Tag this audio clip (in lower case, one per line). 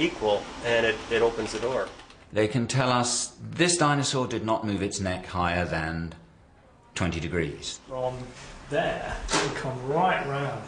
speech
inside a small room